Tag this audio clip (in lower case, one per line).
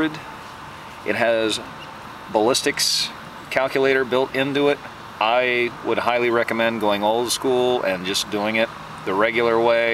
speech